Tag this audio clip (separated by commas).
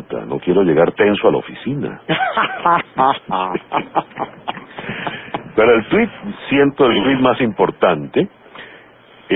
Speech